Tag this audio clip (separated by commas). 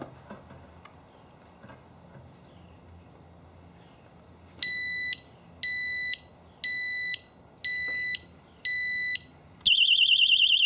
Alarm